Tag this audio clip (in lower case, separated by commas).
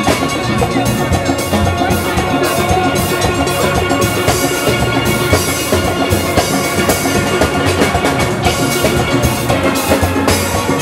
steelpan, drum, music